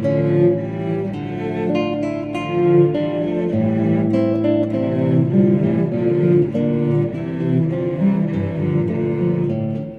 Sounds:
Musical instrument, Bowed string instrument, Double bass, Guitar, Classical music, Plucked string instrument, Music

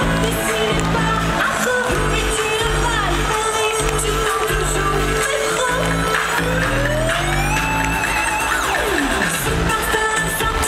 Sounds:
Music, Rain on surface

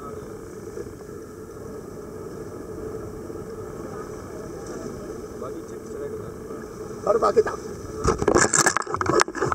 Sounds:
scuba diving

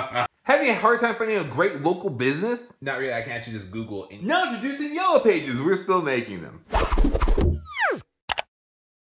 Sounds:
inside a small room, Speech

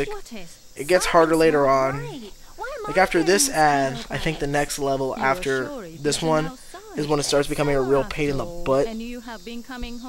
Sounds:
Speech

